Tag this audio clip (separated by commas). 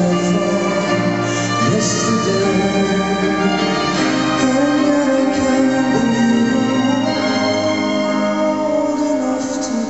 Singing, Orchestra